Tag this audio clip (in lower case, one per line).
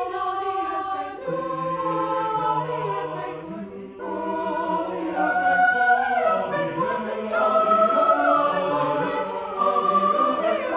music